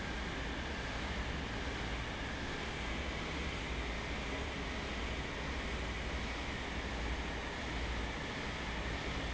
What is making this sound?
fan